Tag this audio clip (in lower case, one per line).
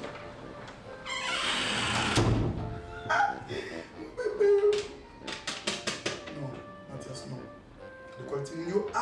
inside a small room
music
speech